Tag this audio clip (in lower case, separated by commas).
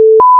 alarm